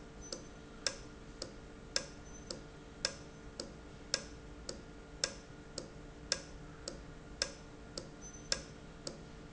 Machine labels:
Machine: valve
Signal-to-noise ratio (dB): 6 dB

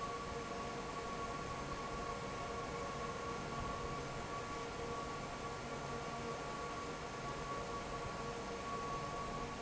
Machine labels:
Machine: fan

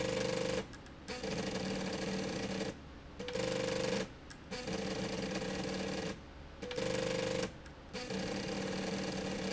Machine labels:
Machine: slide rail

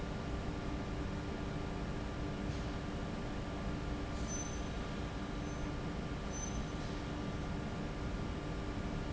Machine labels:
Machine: fan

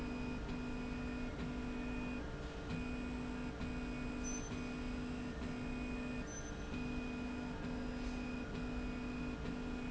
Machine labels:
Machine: slide rail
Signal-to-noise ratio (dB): 0 dB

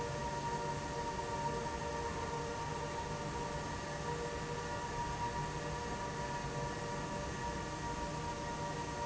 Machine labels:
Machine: fan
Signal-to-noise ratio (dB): -6 dB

